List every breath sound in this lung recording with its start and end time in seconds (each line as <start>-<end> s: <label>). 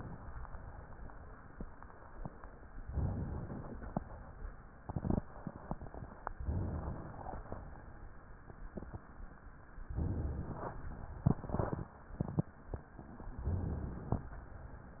2.84-3.77 s: inhalation
3.74-4.52 s: exhalation
6.47-7.25 s: inhalation
7.23-8.11 s: exhalation
9.97-10.81 s: inhalation
13.40-14.31 s: inhalation